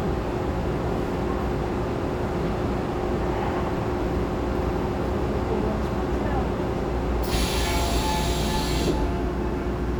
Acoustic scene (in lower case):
subway train